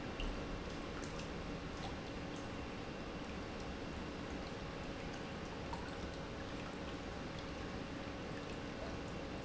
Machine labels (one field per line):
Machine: pump